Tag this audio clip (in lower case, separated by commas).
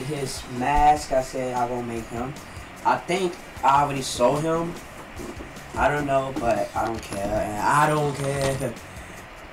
speech, music